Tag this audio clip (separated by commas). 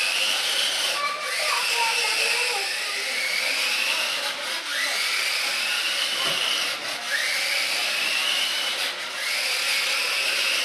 Speech